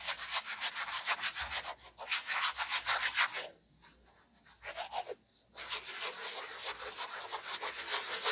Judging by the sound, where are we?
in a restroom